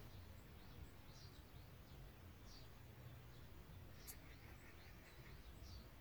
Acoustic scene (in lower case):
park